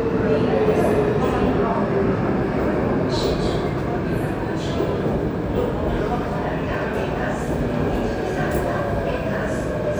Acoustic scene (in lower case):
subway station